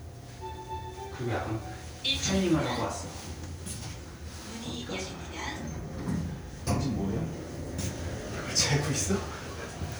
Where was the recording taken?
in an elevator